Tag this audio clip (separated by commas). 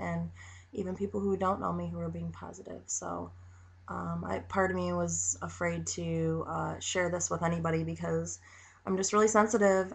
Speech